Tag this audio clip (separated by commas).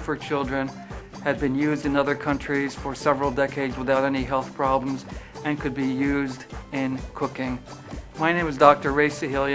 Speech, Music